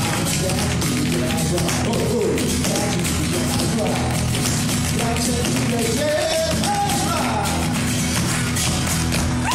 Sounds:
Music, Tap

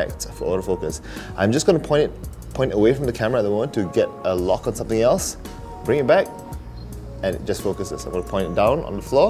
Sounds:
Speech, Music

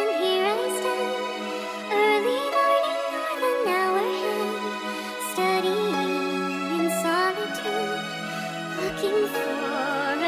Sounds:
Music, kid speaking, Lullaby

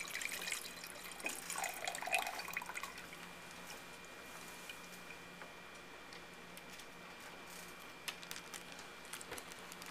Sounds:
Liquid

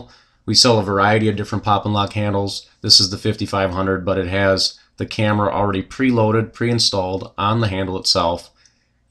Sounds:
Speech

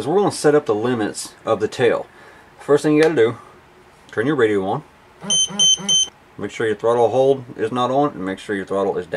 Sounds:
Speech, inside a small room, smoke alarm

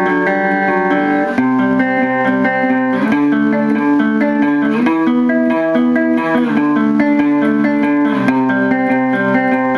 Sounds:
playing electric guitar, Guitar, Musical instrument, Music, Electric guitar

